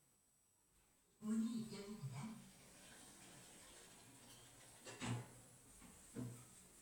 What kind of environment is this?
elevator